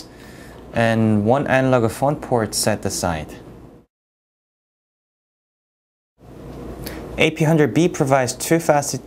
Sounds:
Speech

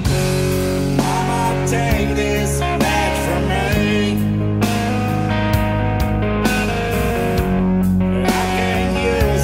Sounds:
Music

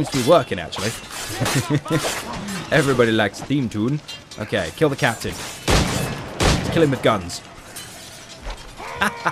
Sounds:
Fusillade

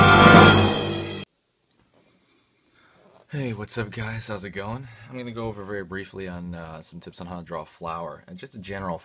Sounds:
Speech, Music

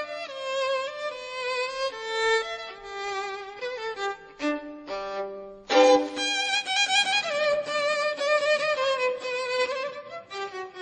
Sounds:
Violin, Music, Musical instrument

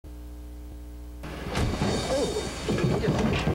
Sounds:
Speech

